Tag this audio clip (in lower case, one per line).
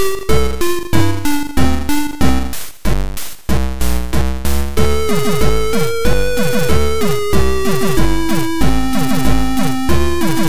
music
exciting music